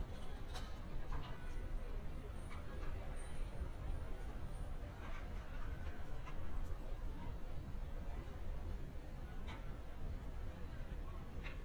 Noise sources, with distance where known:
background noise

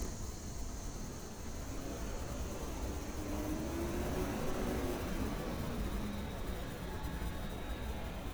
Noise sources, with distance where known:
large-sounding engine, near

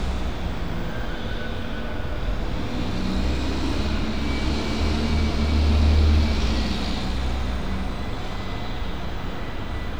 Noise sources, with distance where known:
large-sounding engine, near

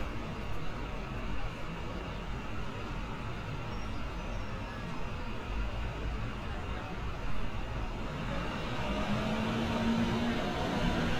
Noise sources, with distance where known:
engine of unclear size, near

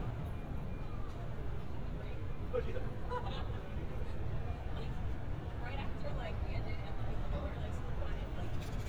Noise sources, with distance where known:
person or small group talking, near

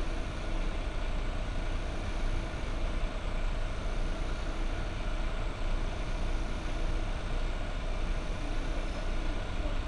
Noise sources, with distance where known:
engine of unclear size, near

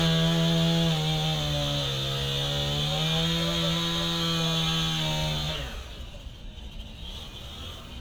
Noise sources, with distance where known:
unidentified powered saw, near

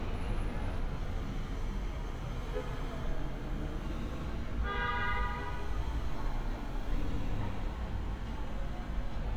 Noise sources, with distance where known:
engine of unclear size
car horn, near

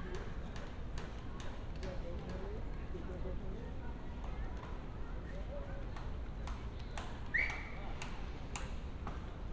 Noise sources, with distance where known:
unidentified human voice

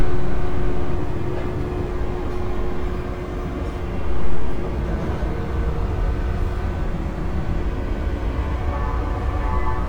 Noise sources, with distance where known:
unidentified alert signal

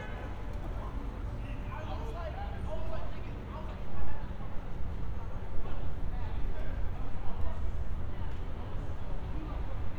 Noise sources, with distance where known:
medium-sounding engine
car horn
person or small group shouting

